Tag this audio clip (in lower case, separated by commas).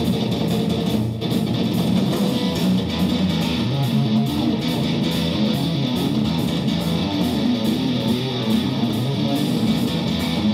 exciting music, music, country